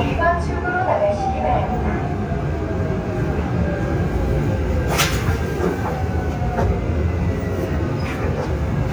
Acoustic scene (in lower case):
subway train